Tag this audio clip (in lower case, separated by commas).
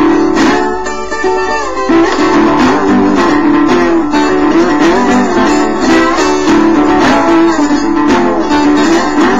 guitar, musical instrument, music, electric guitar, plucked string instrument, mandolin